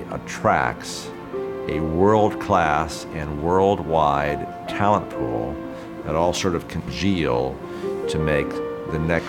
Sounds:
Music, Speech

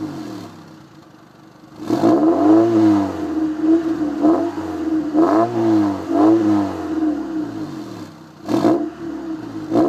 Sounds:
Vehicle, Car

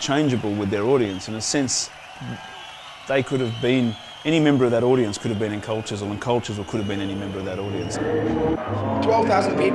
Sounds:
Speech

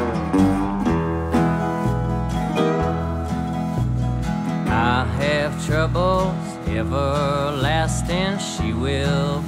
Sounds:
Acoustic guitar, Music

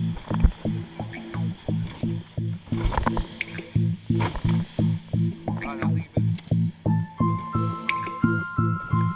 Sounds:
Music

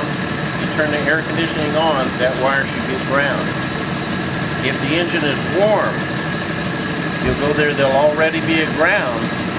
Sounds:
hedge trimmer running

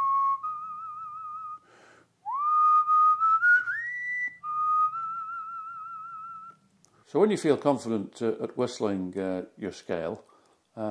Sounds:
people whistling

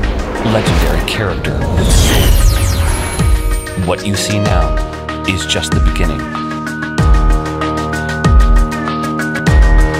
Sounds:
Music, Soundtrack music

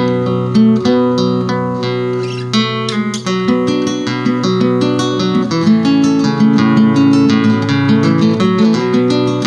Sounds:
Musical instrument, Guitar, Strum, Music, Acoustic guitar, Plucked string instrument

